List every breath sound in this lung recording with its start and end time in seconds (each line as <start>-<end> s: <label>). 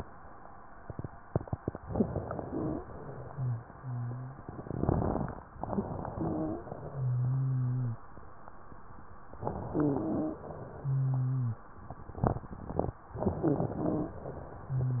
1.79-2.79 s: inhalation
2.81-4.44 s: exhalation
3.29-4.40 s: wheeze
5.52-6.63 s: inhalation
5.66-6.63 s: wheeze
6.65-8.03 s: exhalation
6.87-8.03 s: wheeze
9.36-10.42 s: inhalation
9.70-10.42 s: wheeze
10.42-11.69 s: exhalation
10.79-11.65 s: wheeze
13.14-14.16 s: wheeze
13.14-14.26 s: inhalation
14.26-15.00 s: exhalation
14.66-15.00 s: wheeze